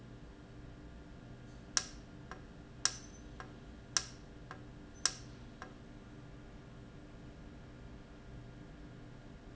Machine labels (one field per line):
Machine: valve